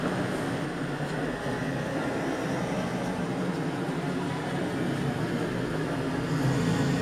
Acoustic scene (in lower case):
street